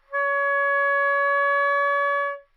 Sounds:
musical instrument, woodwind instrument, music

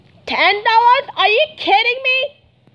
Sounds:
shout, human voice

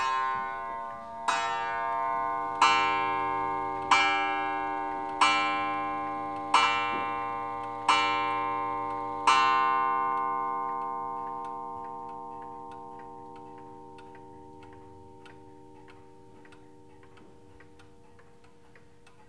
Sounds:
mechanisms, clock

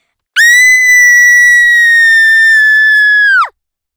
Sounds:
human voice, screaming

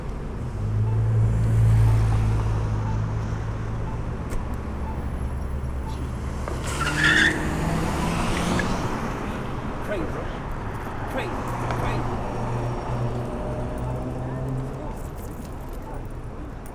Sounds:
vehicle, car, motor vehicle (road)

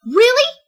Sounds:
speech, woman speaking, human voice

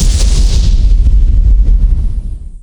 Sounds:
boom, explosion

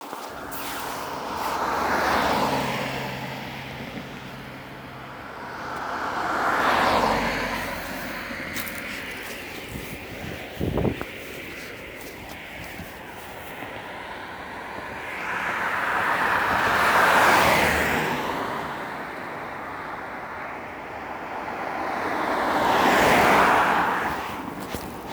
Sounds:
car, motor vehicle (road), vehicle

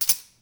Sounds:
tambourine, percussion, music, musical instrument

